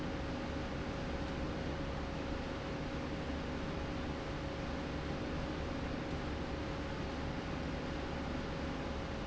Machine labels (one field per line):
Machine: slide rail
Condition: normal